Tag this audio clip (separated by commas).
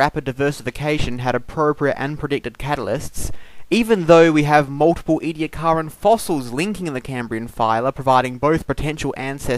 Speech